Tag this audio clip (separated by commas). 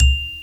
Bell, Musical instrument, Percussion, Mallet percussion, Music, Marimba